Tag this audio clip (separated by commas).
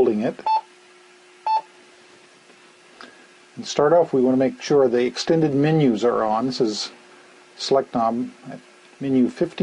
Speech